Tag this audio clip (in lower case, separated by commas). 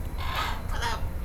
animal, bird, wild animals